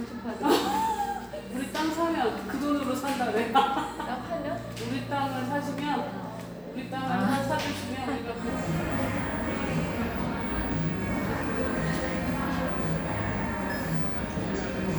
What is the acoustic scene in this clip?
cafe